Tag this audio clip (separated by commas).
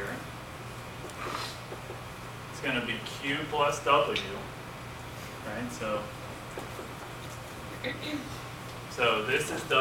Speech